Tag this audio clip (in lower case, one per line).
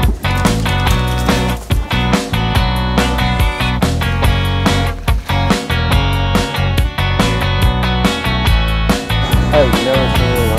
speech
music